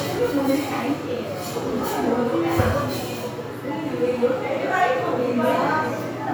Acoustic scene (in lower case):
crowded indoor space